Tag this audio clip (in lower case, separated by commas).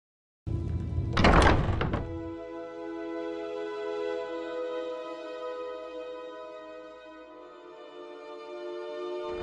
music